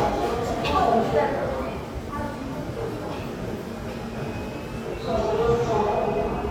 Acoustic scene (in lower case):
subway station